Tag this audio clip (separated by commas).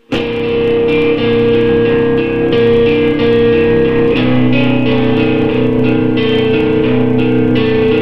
Musical instrument, Guitar, Plucked string instrument, Music